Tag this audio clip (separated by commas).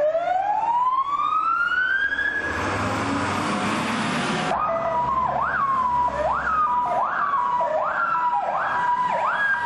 Emergency vehicle, Fire engine, Siren